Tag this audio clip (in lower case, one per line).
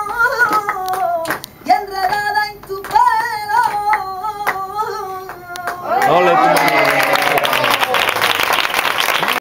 speech